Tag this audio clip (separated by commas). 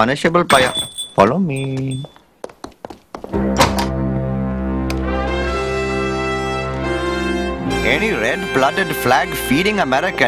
Brass instrument, Trumpet